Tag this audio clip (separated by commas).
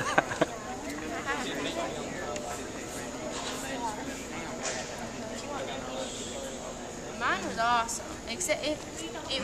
Speech